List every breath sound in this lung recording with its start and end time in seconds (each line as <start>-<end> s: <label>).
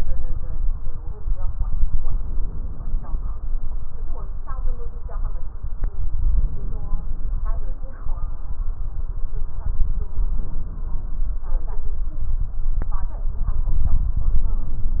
2.04-3.29 s: inhalation
6.26-7.38 s: inhalation
10.34-11.47 s: inhalation